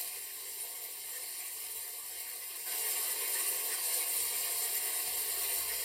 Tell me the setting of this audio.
restroom